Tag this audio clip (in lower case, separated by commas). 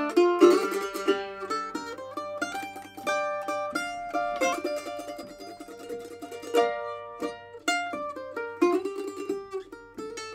banjo, guitar, musical instrument, mandolin, plucked string instrument, music, zither